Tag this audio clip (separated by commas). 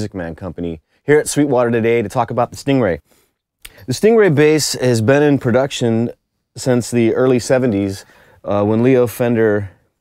Speech